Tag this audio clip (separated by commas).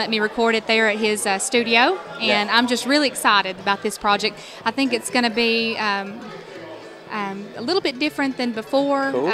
Music, Speech